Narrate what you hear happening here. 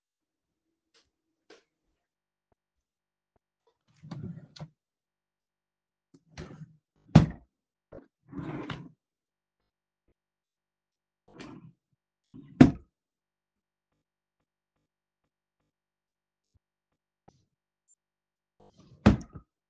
I opened my bedroom drawers to retrieve some underwear and socks.